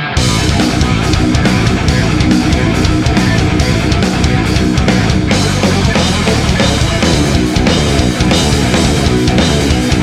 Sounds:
music

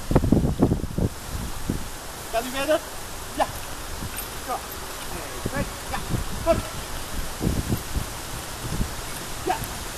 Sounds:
speech
horse
outside, rural or natural
animal

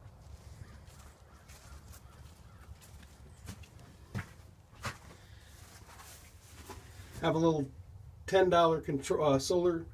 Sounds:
speech

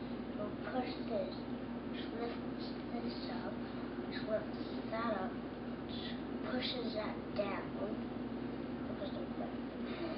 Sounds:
speech

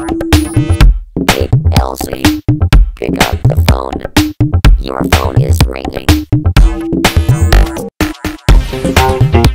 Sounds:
dance music
music
disco

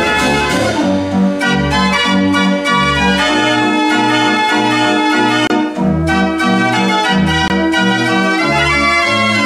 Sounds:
music

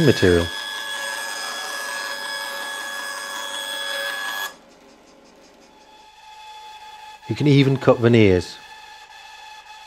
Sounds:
tools
speech

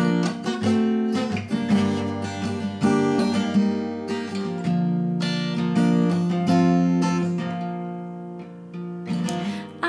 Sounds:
music
acoustic guitar
musical instrument

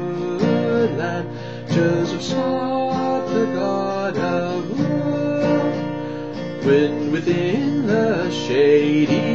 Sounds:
plucked string instrument
musical instrument
strum
music
guitar
acoustic guitar

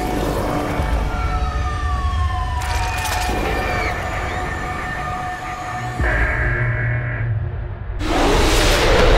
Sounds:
music

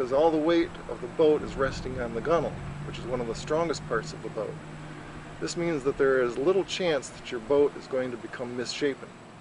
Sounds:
speech

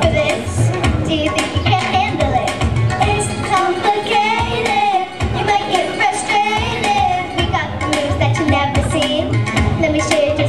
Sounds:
child singing
music

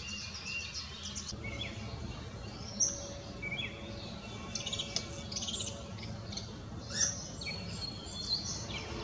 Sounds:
baltimore oriole calling

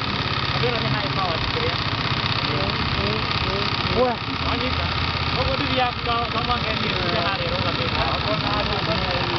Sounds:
speech

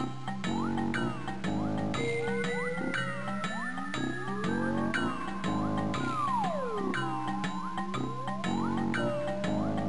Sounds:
music

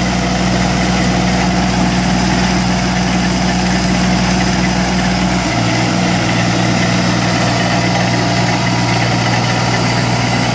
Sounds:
tractor digging

